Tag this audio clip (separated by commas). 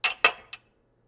Glass, clink